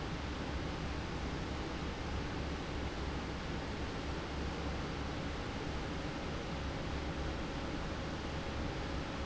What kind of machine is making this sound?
fan